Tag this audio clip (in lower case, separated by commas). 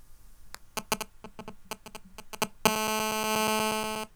alarm, telephone